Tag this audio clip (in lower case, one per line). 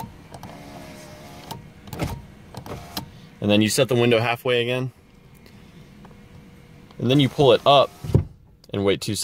opening or closing car electric windows